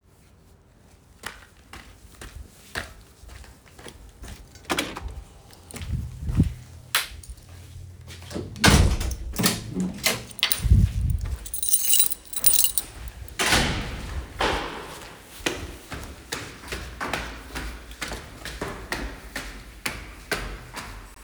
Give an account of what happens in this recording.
I walked to an entrance of my building and opened the first door, then I take my keys out and unlocked the second door with a magnetic key. A door closed automatically. Finally, I started walking up the stairs to my room.